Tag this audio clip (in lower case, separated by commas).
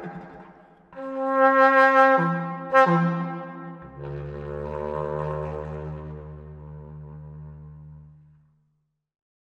music